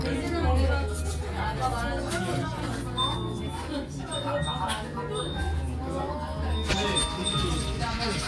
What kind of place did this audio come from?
crowded indoor space